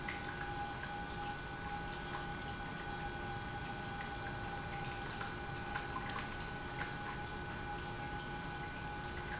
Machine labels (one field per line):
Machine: pump